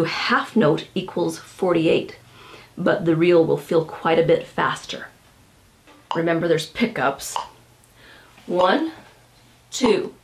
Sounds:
Speech

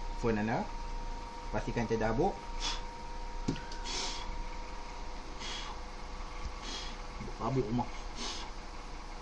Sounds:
Speech

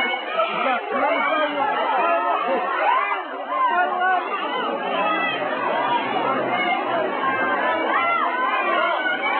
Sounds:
Speech

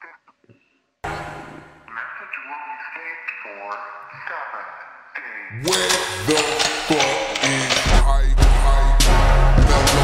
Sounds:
Speech, Music

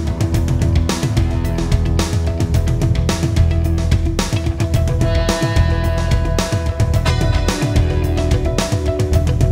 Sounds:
Music

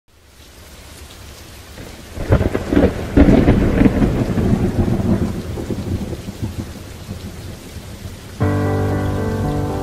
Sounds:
Rain on surface, Thunder, Thunderstorm, Rain

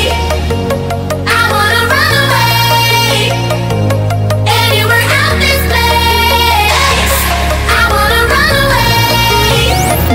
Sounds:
Music

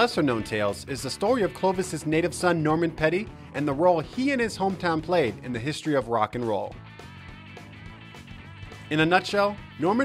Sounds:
Rock and roll, Music, Speech, Roll

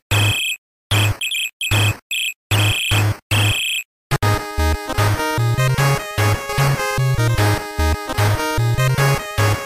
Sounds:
Funny music, Music

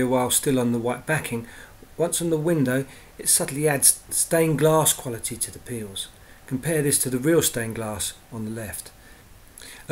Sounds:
Speech

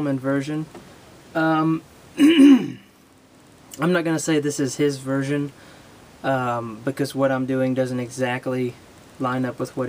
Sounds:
Speech

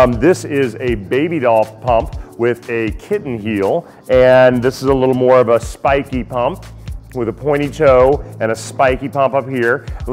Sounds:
Speech, Music

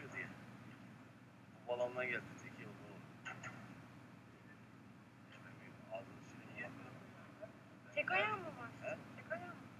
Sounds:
Sheep, Bleat, Speech

